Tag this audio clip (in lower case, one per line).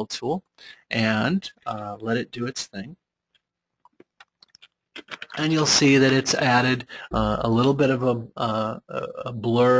speech